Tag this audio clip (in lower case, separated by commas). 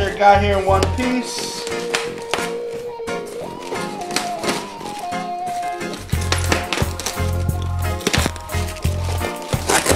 music, speech